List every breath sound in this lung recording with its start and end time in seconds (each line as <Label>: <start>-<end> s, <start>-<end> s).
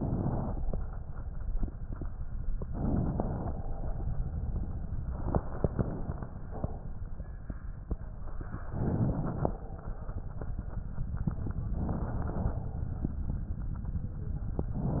Inhalation: 0.00-0.72 s, 2.62-3.55 s, 8.69-9.62 s, 11.72-12.66 s